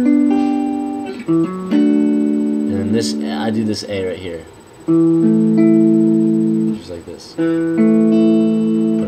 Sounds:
Speech, Musical instrument, Guitar, Acoustic guitar, Plucked string instrument, Music, Strum

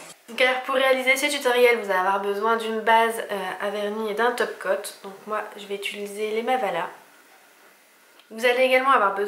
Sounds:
Speech

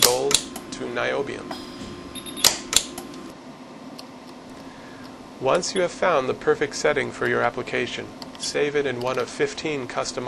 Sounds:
Speech

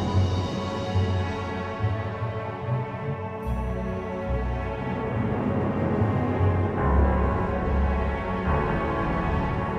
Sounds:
Music, Background music

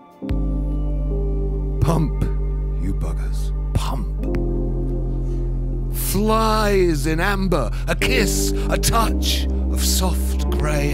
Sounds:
Speech, Music

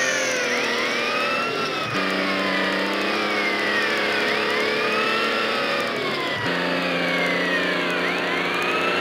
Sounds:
Vehicle, Accelerating

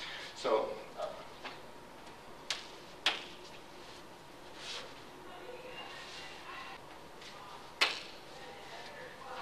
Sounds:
Speech

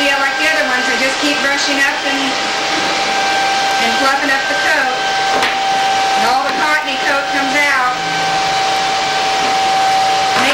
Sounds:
inside a small room, Speech

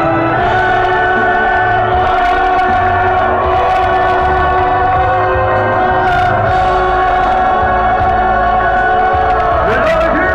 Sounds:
Music, Speech

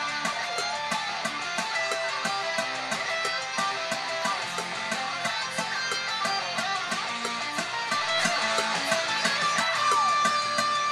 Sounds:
Electric guitar, Music, Guitar, Musical instrument, Plucked string instrument

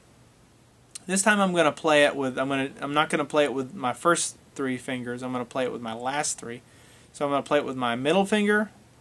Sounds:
Speech

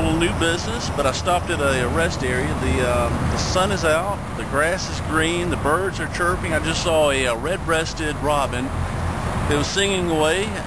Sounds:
Speech

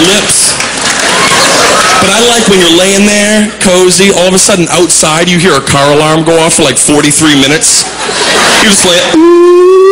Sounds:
Speech

